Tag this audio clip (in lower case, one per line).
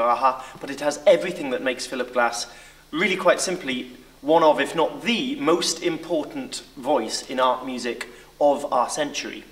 speech